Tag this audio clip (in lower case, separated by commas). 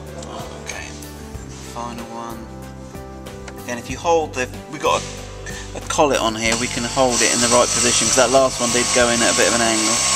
speech, music